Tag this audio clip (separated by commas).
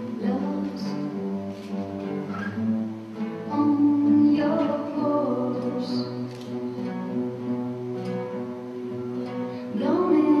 Music